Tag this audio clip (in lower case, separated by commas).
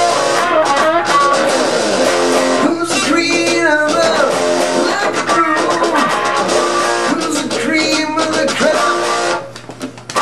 plucked string instrument, bass guitar, strum, musical instrument, guitar, music